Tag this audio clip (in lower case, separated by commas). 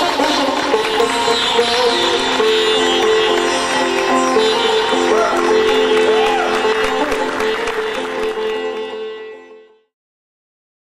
playing sitar